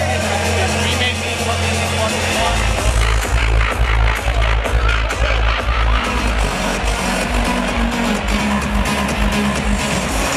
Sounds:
Music, Crowd, Speech

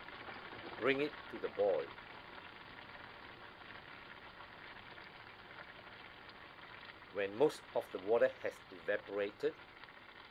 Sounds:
Speech

